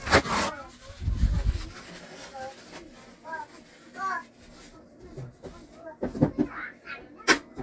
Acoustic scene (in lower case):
kitchen